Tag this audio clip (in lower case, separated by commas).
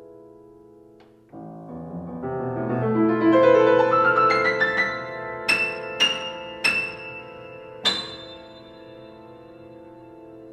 music